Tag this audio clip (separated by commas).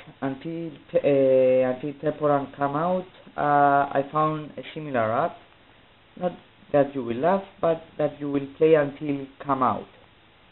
Speech